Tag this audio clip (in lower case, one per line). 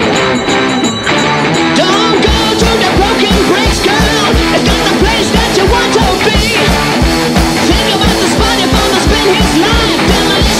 music
punk rock